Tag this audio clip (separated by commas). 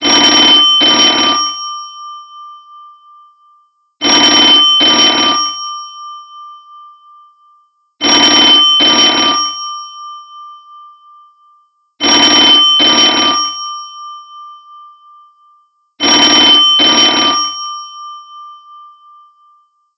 Telephone, Alarm